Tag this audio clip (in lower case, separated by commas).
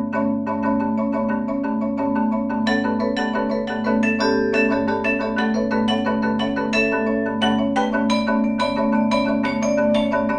marimba, music